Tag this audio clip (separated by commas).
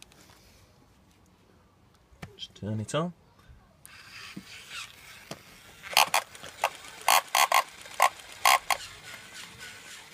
pig oinking